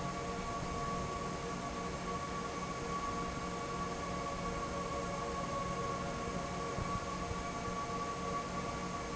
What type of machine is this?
fan